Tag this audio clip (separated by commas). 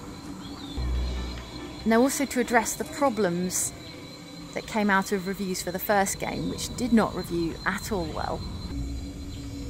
Speech, Music